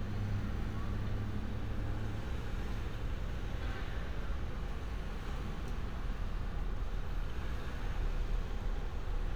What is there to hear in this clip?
medium-sounding engine